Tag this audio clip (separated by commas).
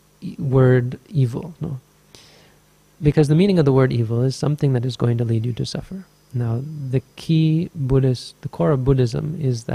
Speech, Radio